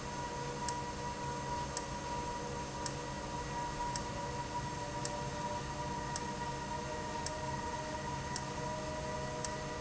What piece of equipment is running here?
valve